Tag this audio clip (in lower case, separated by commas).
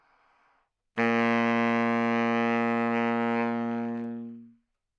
music, musical instrument, woodwind instrument